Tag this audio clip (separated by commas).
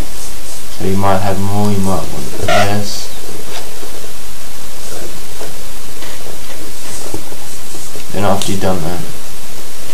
Speech